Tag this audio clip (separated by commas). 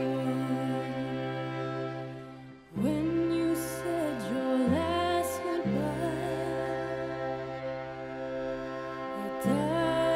Cello, Bowed string instrument